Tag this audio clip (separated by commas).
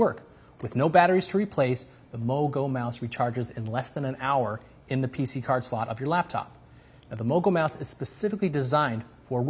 Speech